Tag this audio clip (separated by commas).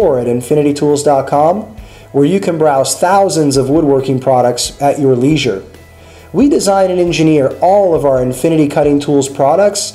Music, Speech